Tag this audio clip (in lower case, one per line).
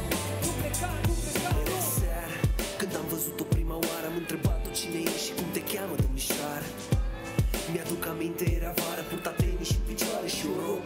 music